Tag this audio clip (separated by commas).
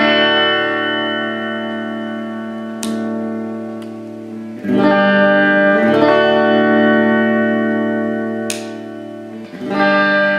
Guitar, Music, inside a small room, Plucked string instrument, Musical instrument